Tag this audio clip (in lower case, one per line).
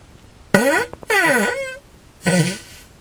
fart